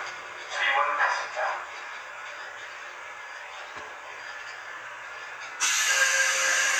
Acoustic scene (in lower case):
subway train